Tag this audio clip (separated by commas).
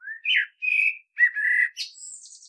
Wild animals, Bird, Animal